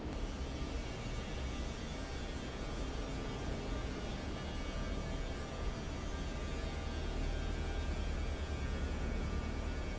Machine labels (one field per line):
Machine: fan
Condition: normal